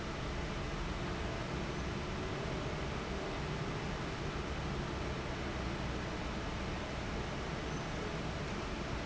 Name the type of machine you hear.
fan